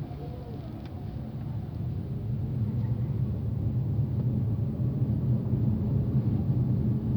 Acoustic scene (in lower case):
car